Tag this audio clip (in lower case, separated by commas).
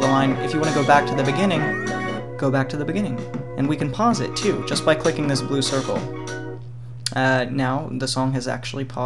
speech, music